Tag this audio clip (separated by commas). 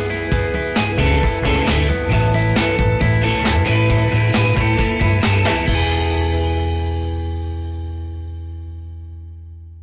Music